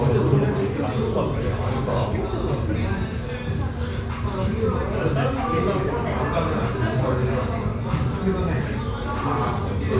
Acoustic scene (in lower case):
crowded indoor space